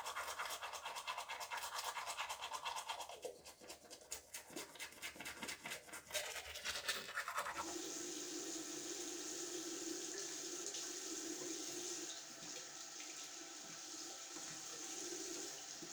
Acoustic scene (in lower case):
restroom